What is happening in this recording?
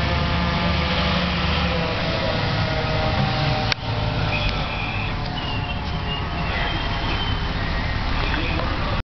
A large vehicle is approaching and slowing down